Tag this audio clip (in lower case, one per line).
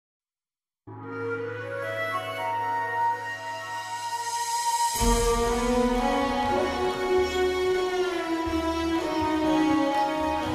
music